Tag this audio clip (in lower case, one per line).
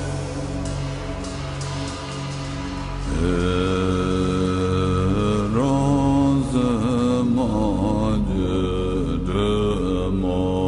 music
mantra